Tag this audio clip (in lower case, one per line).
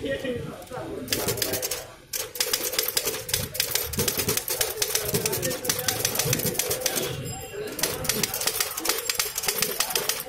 typing on typewriter